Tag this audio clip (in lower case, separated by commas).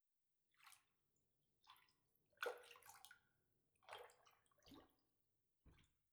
raindrop, rain, water